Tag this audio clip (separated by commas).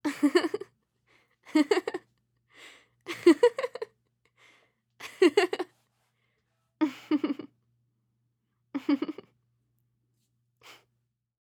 Human voice, Laughter, Giggle